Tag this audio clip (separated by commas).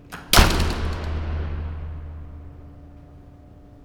Slam, Door, home sounds